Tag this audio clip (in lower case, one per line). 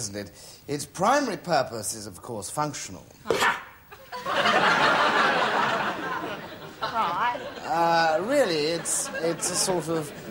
speech